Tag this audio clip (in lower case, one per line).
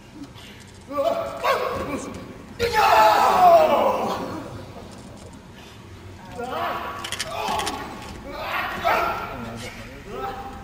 speech